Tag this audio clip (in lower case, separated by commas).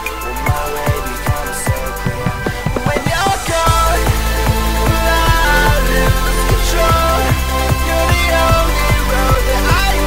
music